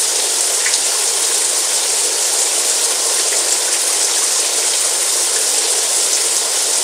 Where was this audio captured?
in a restroom